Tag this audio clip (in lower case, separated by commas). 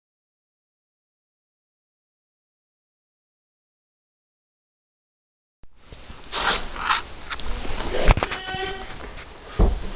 speech